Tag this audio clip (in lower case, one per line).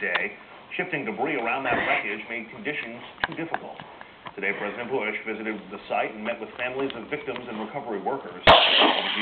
speech
domestic animals
dog